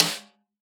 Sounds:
Drum, Musical instrument, Percussion, Music, Snare drum

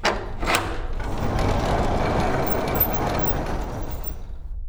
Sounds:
Sliding door, Door, Domestic sounds

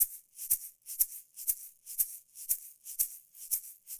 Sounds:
Musical instrument, Percussion, Rattle (instrument), Music

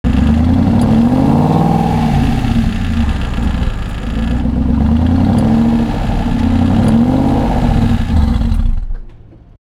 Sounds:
Engine, Car, Vehicle, Motor vehicle (road)

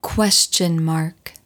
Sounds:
Human voice, Speech, woman speaking

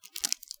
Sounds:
Crumpling

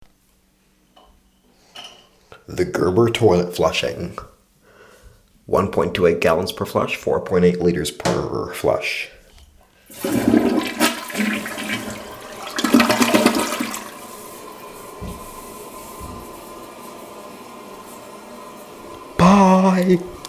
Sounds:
home sounds, Toilet flush

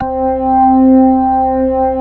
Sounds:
Organ, Music, Musical instrument, Keyboard (musical)

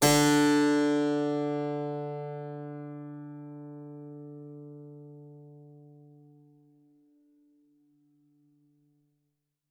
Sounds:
Music, Keyboard (musical), Musical instrument

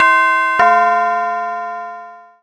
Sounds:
Doorbell, Domestic sounds, Alarm, Door

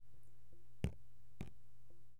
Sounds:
Water, Liquid, Raindrop, Drip, Rain

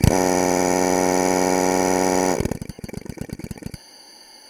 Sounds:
Power tool, Tools, Drill

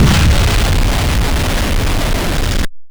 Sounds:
Explosion

